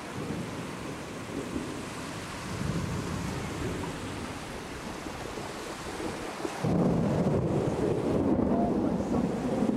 The sound of rain coming down and then a burst of wind